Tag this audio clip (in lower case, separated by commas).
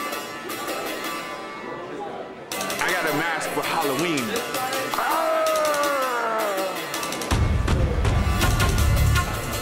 speech, music